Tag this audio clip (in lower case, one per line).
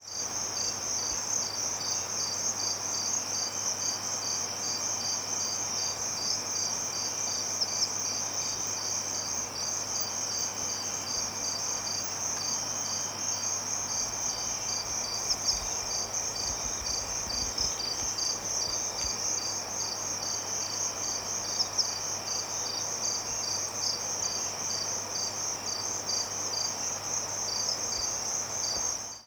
insect
animal
cricket
wild animals